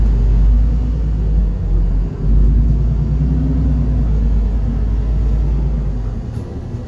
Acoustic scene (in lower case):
bus